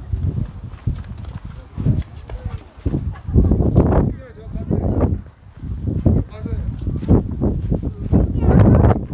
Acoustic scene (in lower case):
park